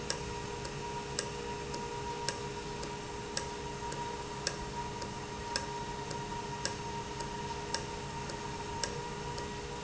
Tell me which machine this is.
valve